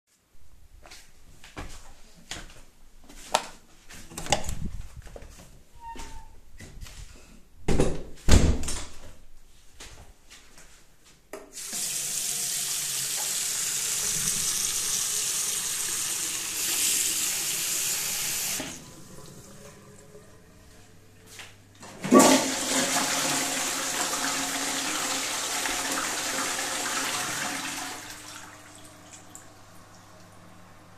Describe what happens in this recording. I walked, opened the door and entered, closed the door, opened the tap and closed it, I then flushed the toilet